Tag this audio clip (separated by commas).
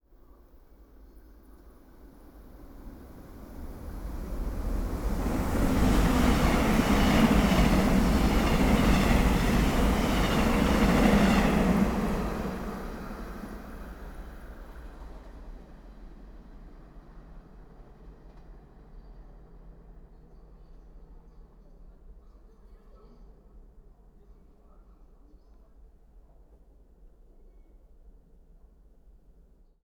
Vehicle, Rail transport, Subway